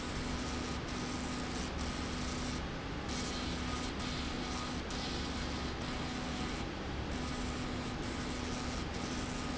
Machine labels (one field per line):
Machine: slide rail